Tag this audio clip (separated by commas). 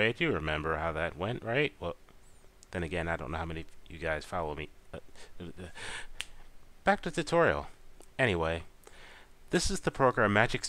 Speech